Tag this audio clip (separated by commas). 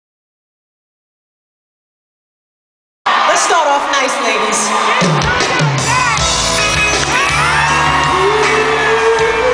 Singing, Pop music, Speech, Silence, Music